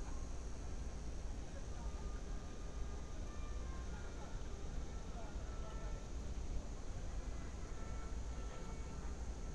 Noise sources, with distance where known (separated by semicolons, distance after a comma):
music from a fixed source, far; person or small group talking, far